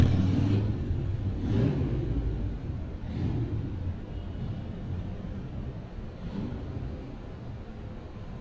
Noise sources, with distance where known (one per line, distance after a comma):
medium-sounding engine, near